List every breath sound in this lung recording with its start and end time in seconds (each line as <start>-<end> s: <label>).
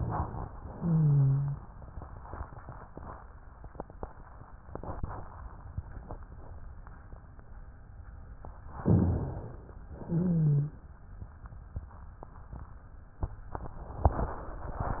0.60-1.60 s: exhalation
0.68-1.60 s: wheeze
8.82-9.74 s: inhalation
9.84-10.76 s: exhalation
9.98-10.76 s: wheeze